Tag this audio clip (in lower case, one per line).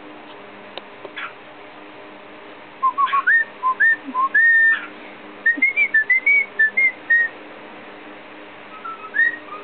whistling